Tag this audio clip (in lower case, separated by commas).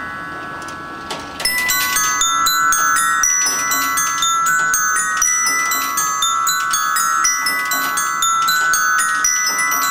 bell, music